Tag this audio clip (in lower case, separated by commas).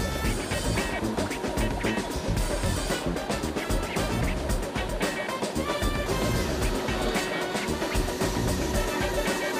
printer, music